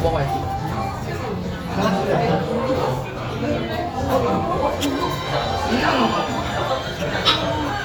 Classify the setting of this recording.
restaurant